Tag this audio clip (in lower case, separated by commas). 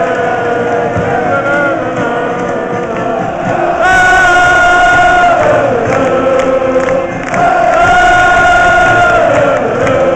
music